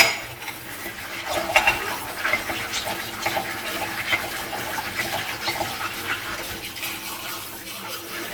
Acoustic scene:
kitchen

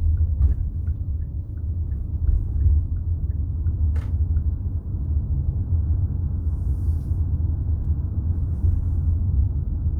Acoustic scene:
car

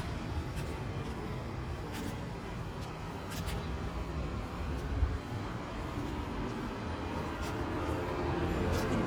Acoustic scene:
residential area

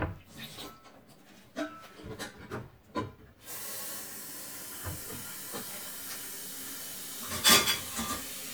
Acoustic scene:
kitchen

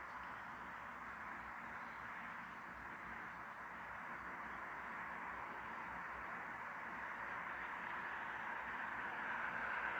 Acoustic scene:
street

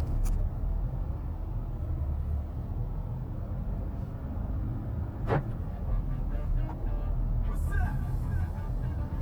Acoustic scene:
car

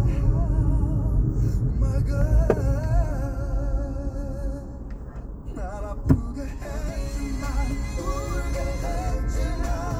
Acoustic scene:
car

